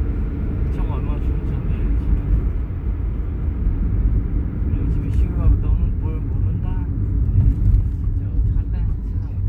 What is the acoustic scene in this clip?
car